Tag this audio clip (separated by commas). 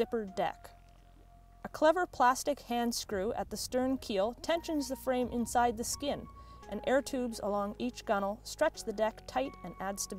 Speech, Music